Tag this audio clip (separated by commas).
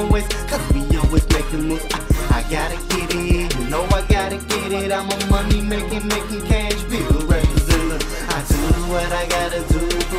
Music